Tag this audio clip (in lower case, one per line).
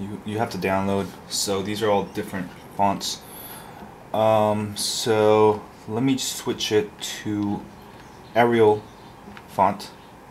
speech